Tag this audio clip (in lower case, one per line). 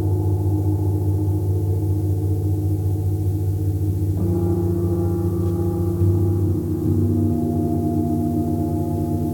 gong